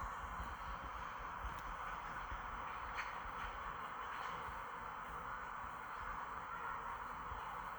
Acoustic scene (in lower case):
park